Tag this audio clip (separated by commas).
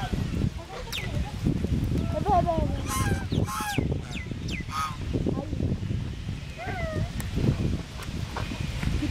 Speech, Animal, Duck, Quack